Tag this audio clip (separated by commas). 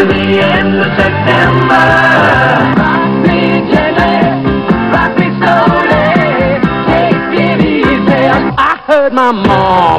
Music, Television